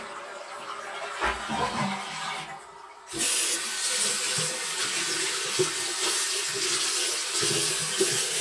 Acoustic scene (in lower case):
restroom